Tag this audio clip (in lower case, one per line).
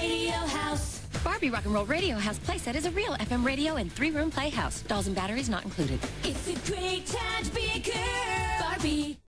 radio
speech
music